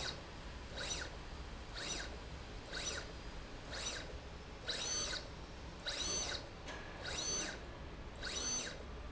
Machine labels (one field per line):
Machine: slide rail